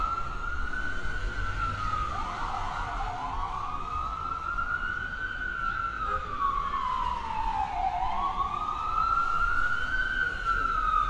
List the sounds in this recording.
siren